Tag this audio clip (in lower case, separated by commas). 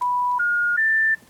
alarm, telephone